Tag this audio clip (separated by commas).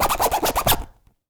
Domestic sounds, Zipper (clothing)